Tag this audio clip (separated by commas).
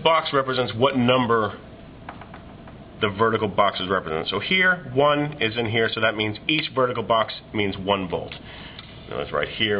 Speech